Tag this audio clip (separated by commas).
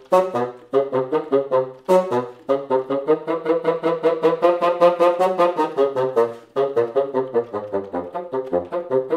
playing bassoon